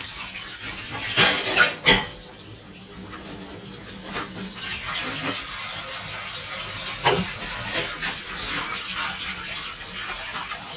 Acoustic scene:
kitchen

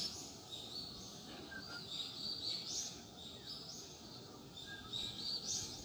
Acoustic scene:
park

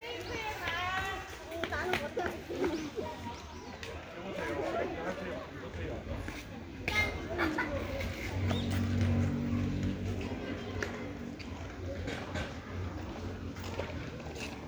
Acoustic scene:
park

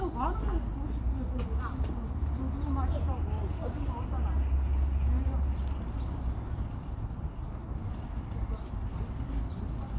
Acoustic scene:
park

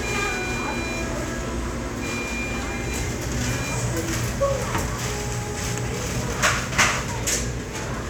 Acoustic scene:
restaurant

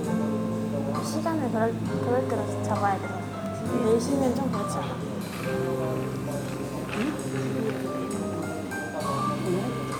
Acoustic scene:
cafe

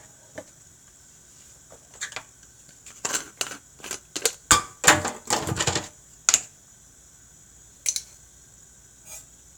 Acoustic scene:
kitchen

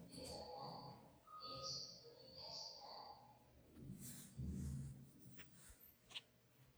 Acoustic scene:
elevator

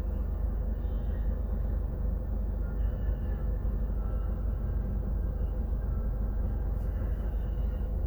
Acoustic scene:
bus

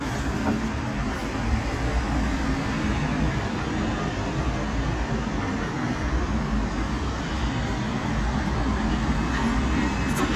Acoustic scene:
residential area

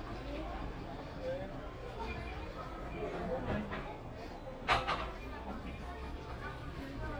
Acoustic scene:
crowded indoor space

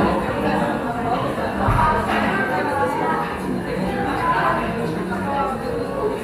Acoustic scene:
cafe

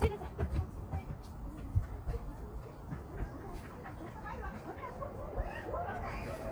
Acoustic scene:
park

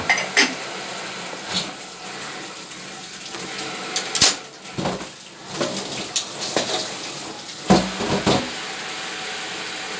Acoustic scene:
kitchen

